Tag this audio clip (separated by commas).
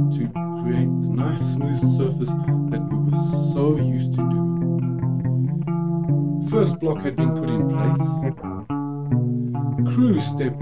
Distortion